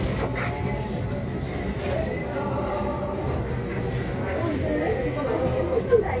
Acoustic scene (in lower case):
crowded indoor space